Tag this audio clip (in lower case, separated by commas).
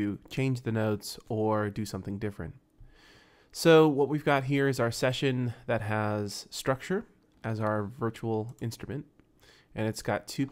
speech